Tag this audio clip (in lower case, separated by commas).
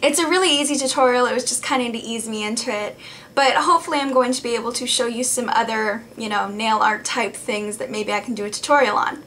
speech